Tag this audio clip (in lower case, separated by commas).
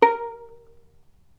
music, bowed string instrument, musical instrument